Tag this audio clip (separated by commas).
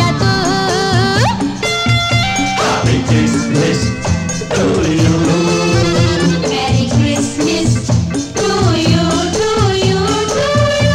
Music